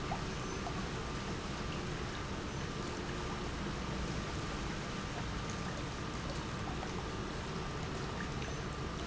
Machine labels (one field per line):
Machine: pump